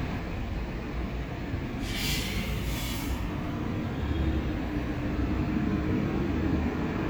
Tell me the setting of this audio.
street